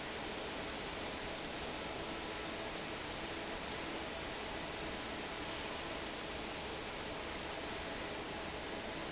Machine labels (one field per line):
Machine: fan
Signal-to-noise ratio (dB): 0 dB